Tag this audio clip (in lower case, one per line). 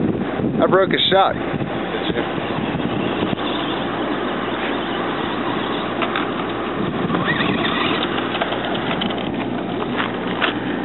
speech